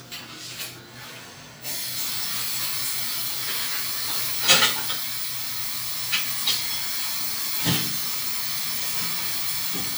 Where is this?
in a restroom